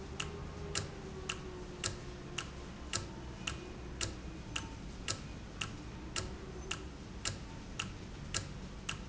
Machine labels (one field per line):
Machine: valve